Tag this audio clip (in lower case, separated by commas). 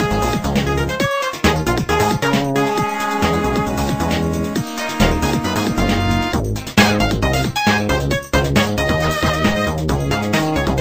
music